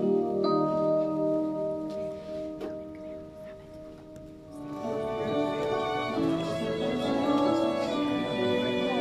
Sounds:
wedding music, speech, music

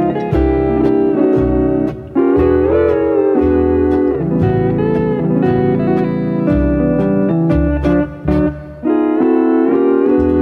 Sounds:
guitar, music, plucked string instrument, musical instrument, slide guitar

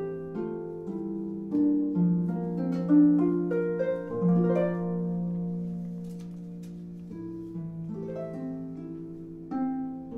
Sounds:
playing harp

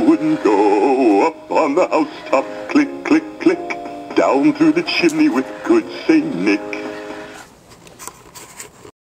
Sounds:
music, male singing

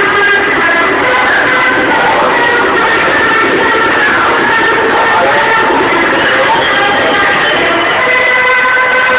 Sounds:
speech, music

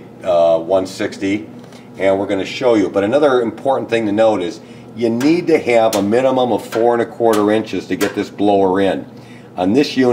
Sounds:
speech

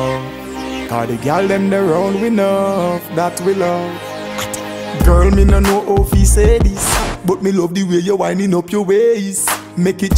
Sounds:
music

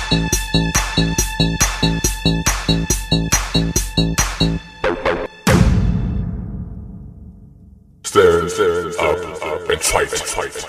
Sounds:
electronic music, drum and bass, music

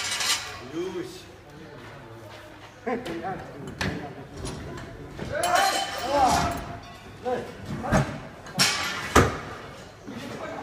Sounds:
speech

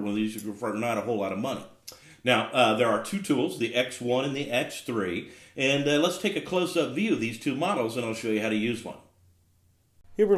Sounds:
speech

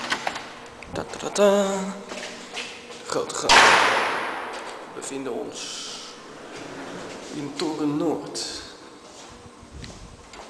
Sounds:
speech

